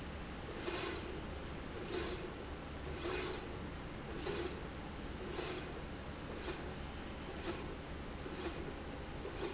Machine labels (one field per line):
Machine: slide rail